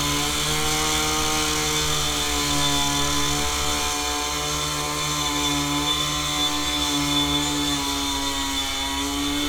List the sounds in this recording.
unidentified powered saw